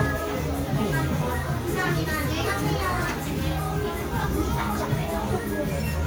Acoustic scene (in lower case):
cafe